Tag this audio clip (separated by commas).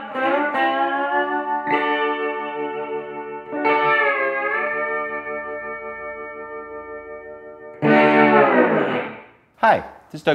Speech, Music